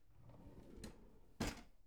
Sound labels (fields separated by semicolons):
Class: drawer; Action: opening; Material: wooden